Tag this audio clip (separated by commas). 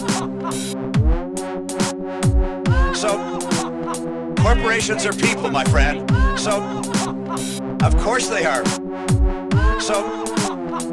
Speech, Dubstep, Electronic music, Music